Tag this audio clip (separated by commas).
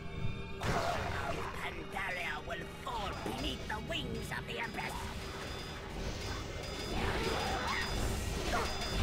Music, Speech